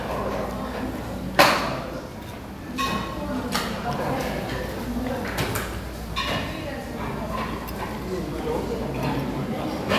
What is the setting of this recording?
crowded indoor space